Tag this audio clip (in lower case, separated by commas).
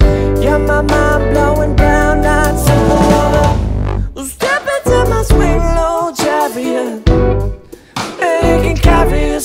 music, pop music, musical instrument